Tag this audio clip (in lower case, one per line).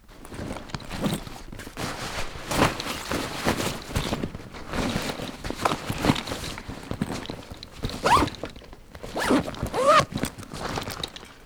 zipper (clothing)
home sounds